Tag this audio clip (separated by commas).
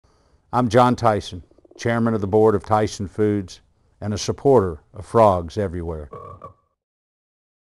Frog, Croak